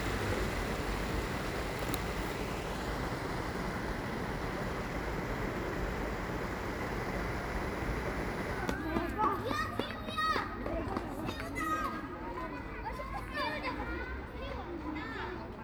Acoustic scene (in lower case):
park